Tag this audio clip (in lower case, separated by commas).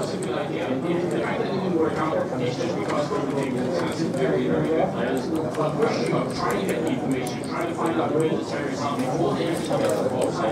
speech